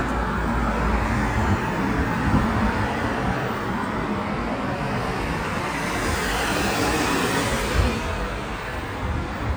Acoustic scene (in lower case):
street